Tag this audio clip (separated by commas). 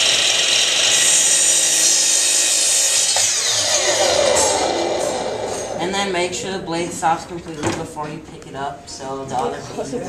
Speech